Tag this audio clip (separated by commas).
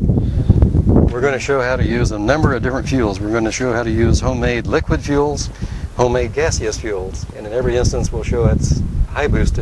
Speech